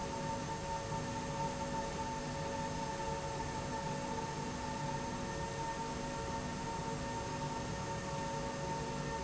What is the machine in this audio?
slide rail